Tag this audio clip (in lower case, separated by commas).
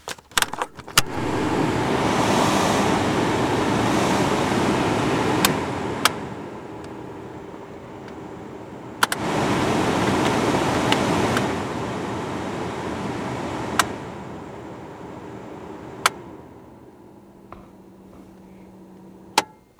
mechanisms, mechanical fan